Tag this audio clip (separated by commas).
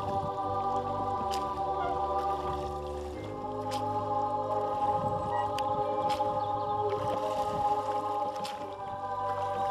Wind noise (microphone), Boat, Wind, kayak